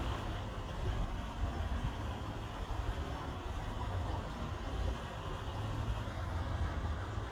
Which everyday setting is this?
park